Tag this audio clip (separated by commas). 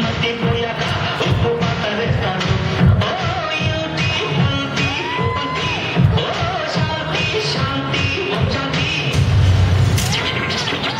Music, inside a large room or hall